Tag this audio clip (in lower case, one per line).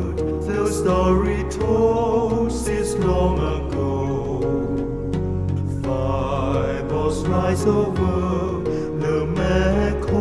music